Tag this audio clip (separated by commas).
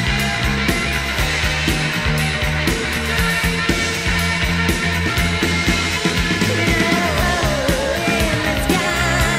Music